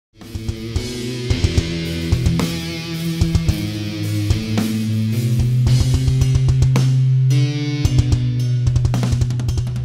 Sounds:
Musical instrument, Keyboard (musical), Music, Drum

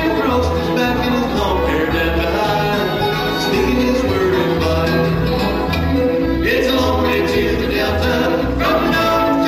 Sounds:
Music, Country

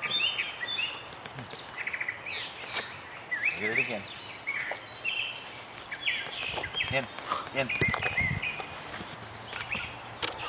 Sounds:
outside, rural or natural, Speech, Environmental noise

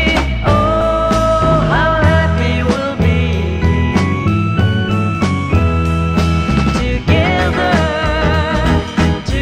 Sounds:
Music, Rock music, Psychedelic rock

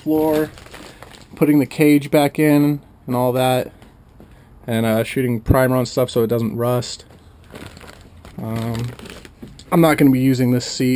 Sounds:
Speech

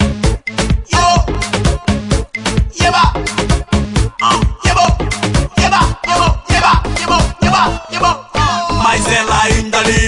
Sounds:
Music, Music of Africa

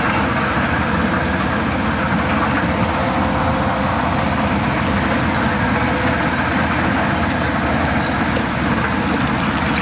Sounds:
Vehicle

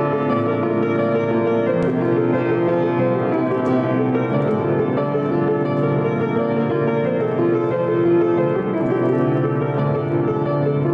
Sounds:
Music

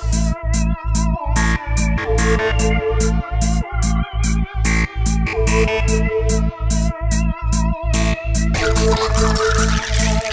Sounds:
Electronic music, Trance music, Music

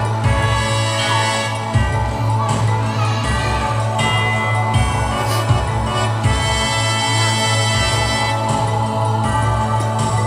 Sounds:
Jingle (music), Music

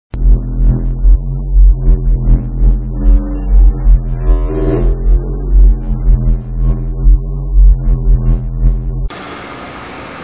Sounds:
Didgeridoo, Music, inside a small room

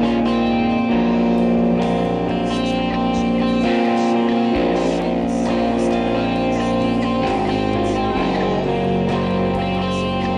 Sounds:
Guitar, Strum, Music, Plucked string instrument, Musical instrument, Electric guitar

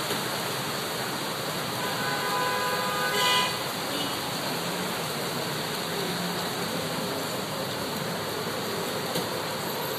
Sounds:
Rain

